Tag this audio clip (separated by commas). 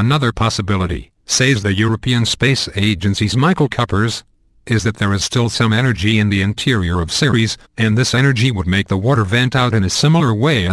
Speech